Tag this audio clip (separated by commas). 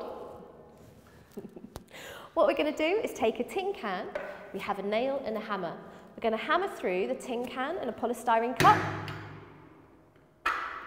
Speech